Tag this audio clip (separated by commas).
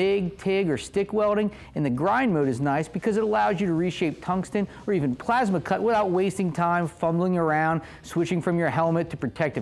Speech